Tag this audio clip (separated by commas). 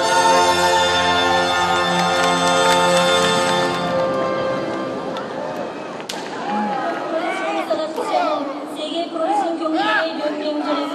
Speech, Music, Chatter